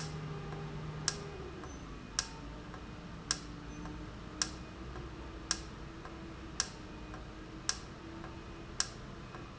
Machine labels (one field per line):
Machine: valve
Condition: normal